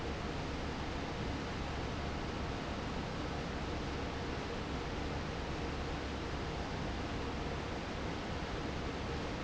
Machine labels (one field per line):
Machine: fan